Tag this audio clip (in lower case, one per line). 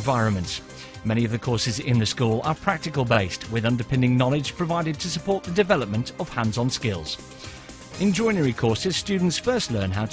music
speech